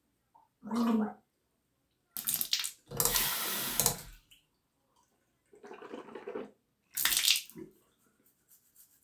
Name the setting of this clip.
restroom